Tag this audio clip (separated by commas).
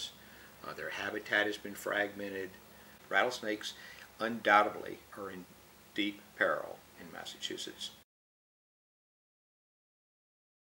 Speech